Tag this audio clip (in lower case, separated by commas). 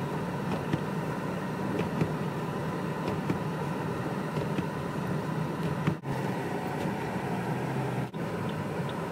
bus